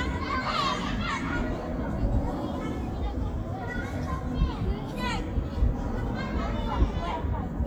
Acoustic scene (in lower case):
park